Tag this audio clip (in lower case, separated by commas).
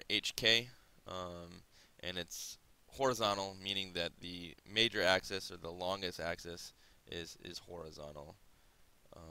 speech